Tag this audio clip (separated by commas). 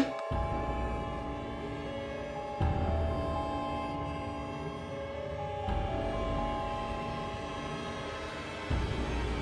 Music